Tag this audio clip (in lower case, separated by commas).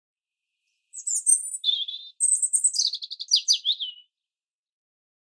wild animals, bird, bird call, tweet, animal